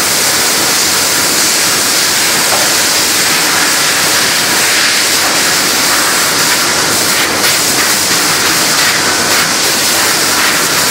High pitched shrill white noise